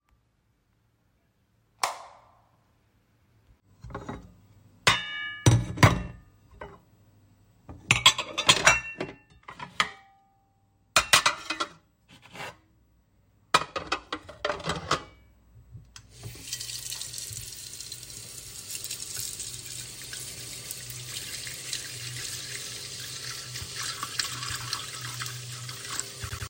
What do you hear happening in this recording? I turned on the switch and put some plates and cutlery in the kitchen sink under running water.